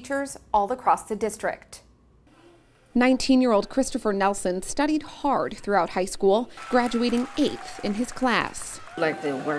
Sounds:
speech

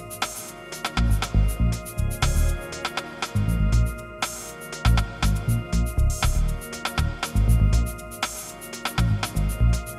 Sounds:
music

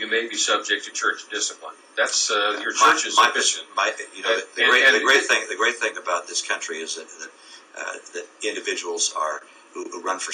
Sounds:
radio
speech

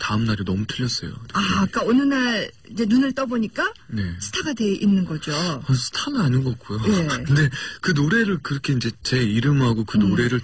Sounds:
speech
radio

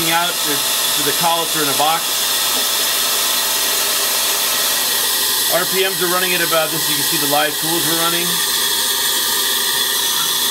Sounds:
tools
speech

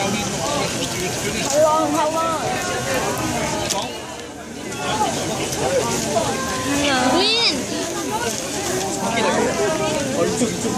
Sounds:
speech

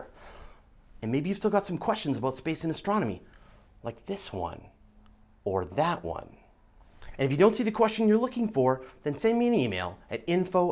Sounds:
speech

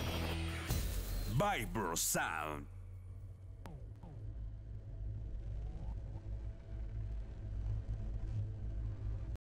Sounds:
music
speech

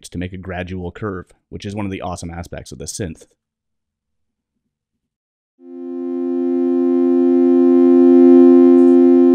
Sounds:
music
synthesizer
speech

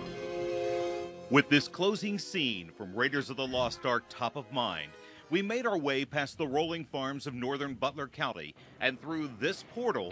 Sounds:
speech
music

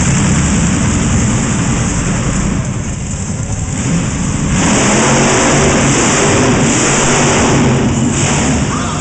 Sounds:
vehicle
speech

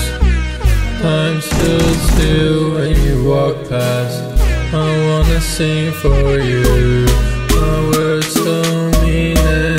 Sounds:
music

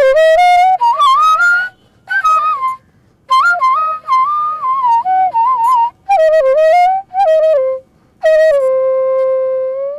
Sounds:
music

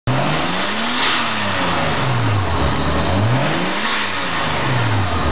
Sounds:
accelerating
vehicle
car

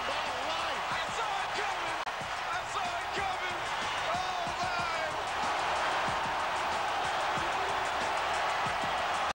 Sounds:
speech
music

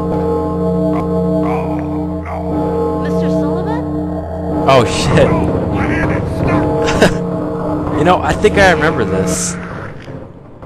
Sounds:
inside a large room or hall
speech

